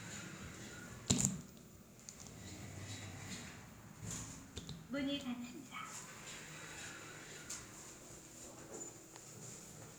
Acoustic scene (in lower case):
elevator